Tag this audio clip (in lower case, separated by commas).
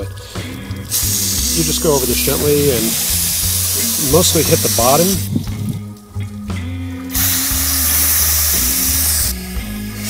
music, speech